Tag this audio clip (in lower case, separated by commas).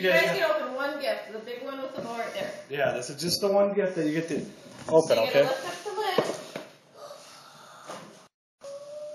speech